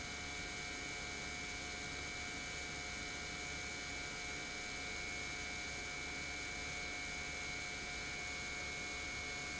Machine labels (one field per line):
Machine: pump